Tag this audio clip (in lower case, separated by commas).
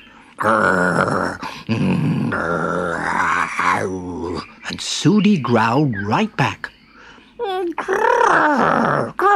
growling, speech